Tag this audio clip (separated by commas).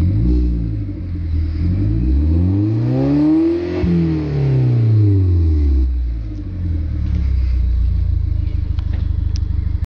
Car, Vehicle, revving